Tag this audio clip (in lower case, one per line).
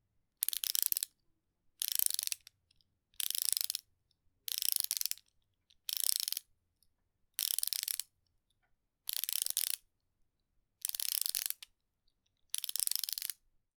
mechanisms
pawl